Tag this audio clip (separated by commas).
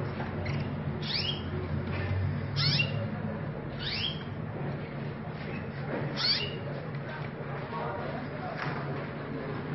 canary calling